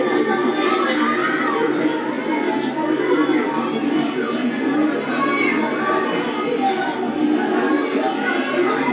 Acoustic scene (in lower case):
park